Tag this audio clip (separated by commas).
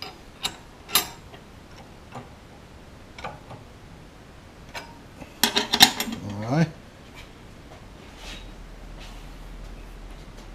Speech